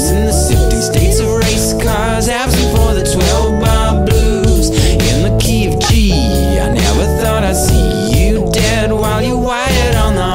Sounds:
Music

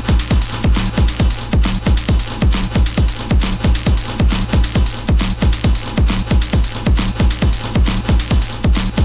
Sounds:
Electronica, Music

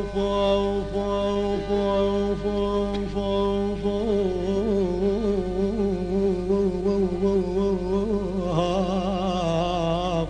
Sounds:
Music, Middle Eastern music

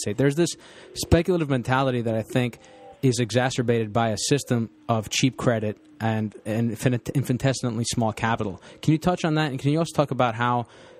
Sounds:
Speech

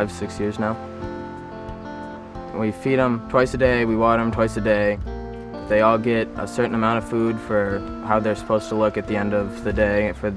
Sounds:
Speech, Music

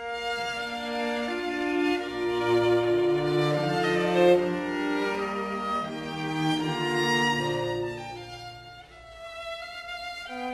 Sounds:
Cello, Violin, Musical instrument, Music, playing cello

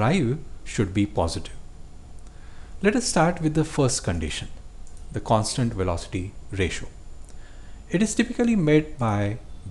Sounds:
Speech

